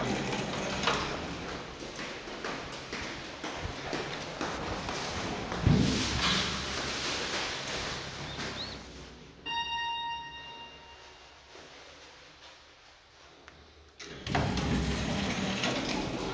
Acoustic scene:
elevator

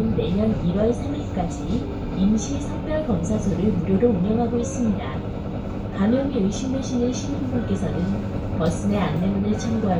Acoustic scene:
bus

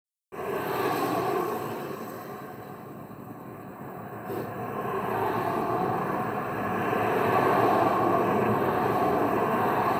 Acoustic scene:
street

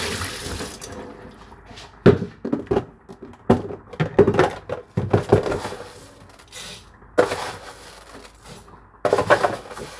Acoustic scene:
kitchen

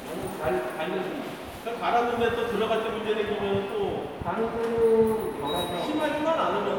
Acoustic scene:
subway station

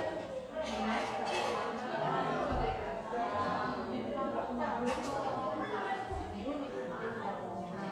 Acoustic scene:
cafe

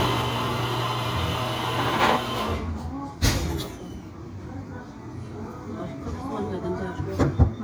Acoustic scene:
cafe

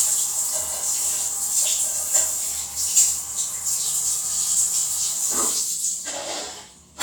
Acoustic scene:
restroom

